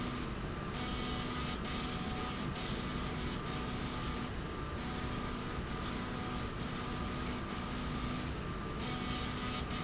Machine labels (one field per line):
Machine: slide rail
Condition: abnormal